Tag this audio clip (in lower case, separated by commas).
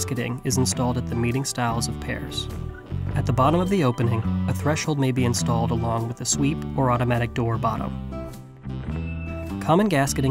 speech, music